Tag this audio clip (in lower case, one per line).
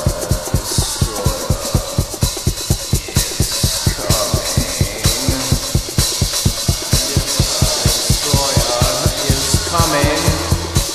speech
music